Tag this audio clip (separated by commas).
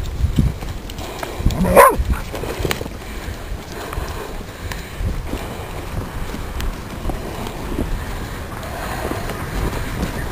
Domestic animals, Dog, Animal